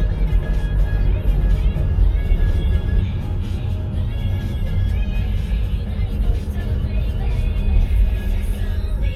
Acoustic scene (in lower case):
car